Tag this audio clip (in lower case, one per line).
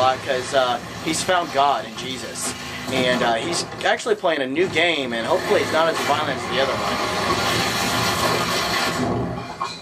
speech